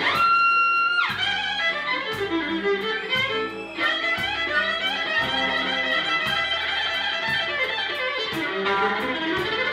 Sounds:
Music, Violin, Musical instrument, Bowed string instrument, Jazz, fiddle, Blues

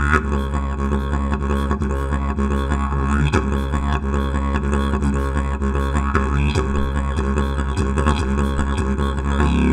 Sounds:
playing didgeridoo

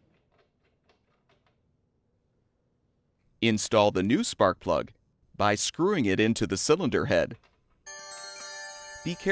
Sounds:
Music, Speech

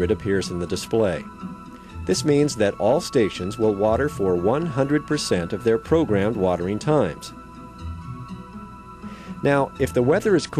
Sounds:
Music, Speech

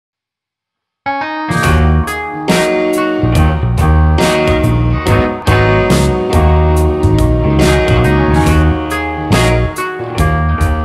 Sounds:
Music

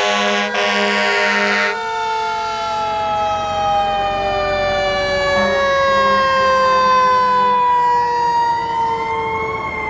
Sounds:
Emergency vehicle, Siren, Fire engine, Police car (siren)

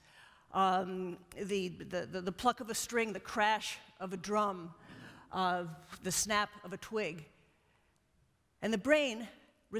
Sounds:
Speech

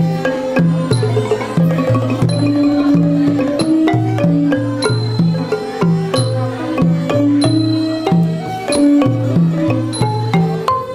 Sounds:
Traditional music, Music

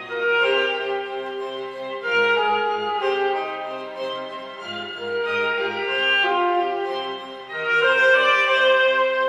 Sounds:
Bowed string instrument, Cello, Violin

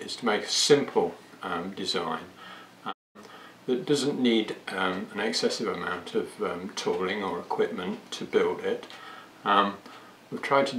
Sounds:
Speech

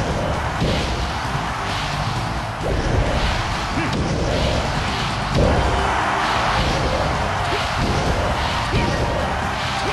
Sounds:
thwack

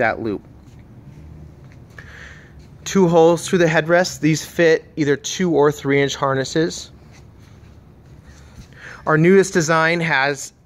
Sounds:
Speech

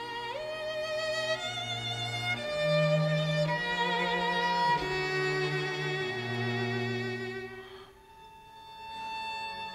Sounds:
Orchestra, Music, Bowed string instrument, String section, Musical instrument, Violin

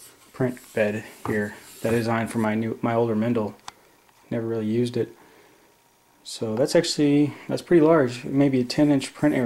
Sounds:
Speech, inside a small room

